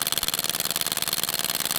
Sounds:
Tools

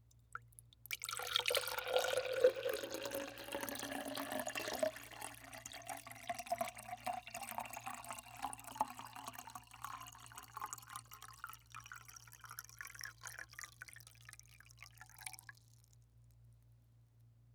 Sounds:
Liquid

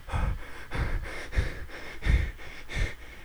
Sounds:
Breathing, Respiratory sounds

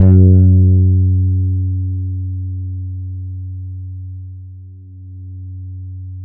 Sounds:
Plucked string instrument, Bass guitar, Musical instrument, Music, Guitar

